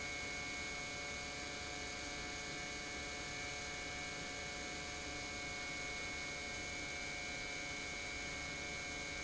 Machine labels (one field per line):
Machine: pump